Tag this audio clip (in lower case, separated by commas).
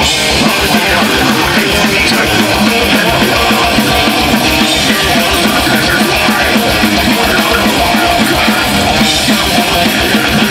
music